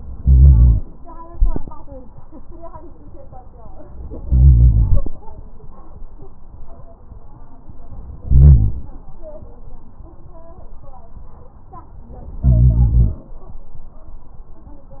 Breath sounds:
0.18-0.79 s: inhalation
4.25-5.03 s: inhalation
8.24-8.85 s: inhalation
12.42-13.24 s: inhalation

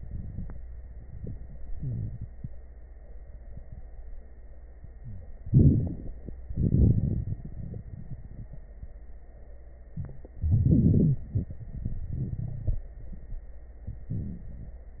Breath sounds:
5.45-6.33 s: inhalation
5.45-6.33 s: crackles
6.47-8.59 s: exhalation
6.47-8.59 s: crackles
10.36-11.26 s: inhalation
10.36-11.26 s: crackles
11.29-12.88 s: exhalation
11.29-12.88 s: crackles

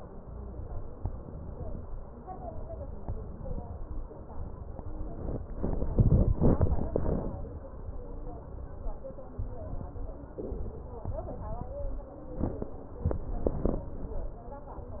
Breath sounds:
11.53-12.49 s: stridor
12.93-13.89 s: inhalation
12.93-13.89 s: crackles

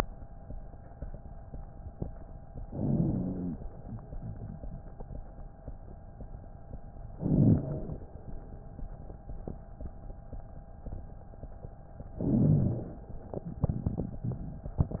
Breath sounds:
2.68-3.61 s: inhalation
2.68-3.61 s: wheeze
7.15-8.05 s: inhalation
7.15-8.05 s: wheeze
12.22-13.11 s: inhalation
12.22-13.11 s: wheeze

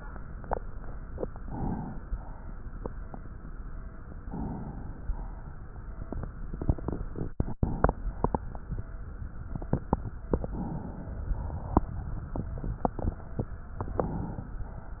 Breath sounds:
1.26-2.09 s: inhalation
1.26-2.09 s: crackles
2.09-4.18 s: exhalation
2.09-4.18 s: crackles
4.22-5.04 s: inhalation
4.22-5.04 s: crackles
5.07-7.60 s: exhalation
5.07-7.60 s: crackles
10.17-11.32 s: inhalation
10.17-11.32 s: crackles
11.34-13.11 s: exhalation
11.34-13.11 s: crackles
13.79-14.60 s: inhalation
13.79-14.60 s: crackles

